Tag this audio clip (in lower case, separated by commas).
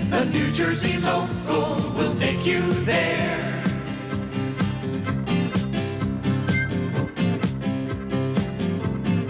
music, bluegrass